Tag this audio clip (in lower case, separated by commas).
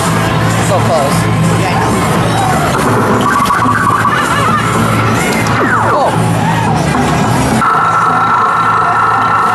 speech, music